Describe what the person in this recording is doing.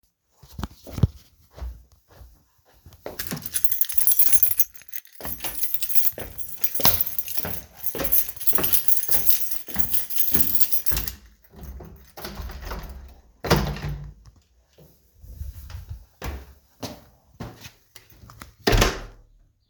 I walked through my room, grabbed my keys and walked out the front door.